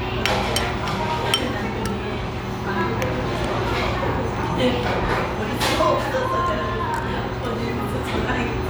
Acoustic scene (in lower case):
restaurant